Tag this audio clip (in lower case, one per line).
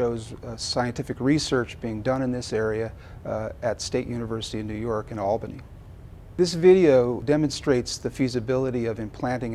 speech